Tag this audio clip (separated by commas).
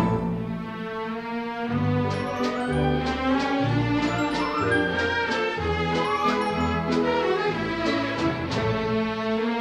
Music